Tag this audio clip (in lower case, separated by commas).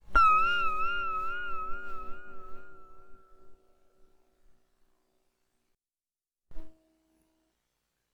guitar, plucked string instrument, musical instrument, music